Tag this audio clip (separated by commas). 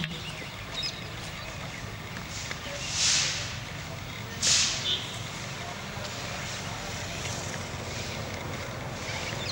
Animal, Domestic animals